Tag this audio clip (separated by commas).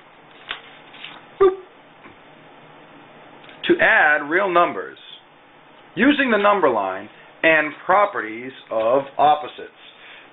inside a small room, Speech